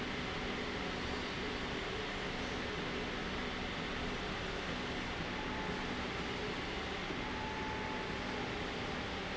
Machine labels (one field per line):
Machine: slide rail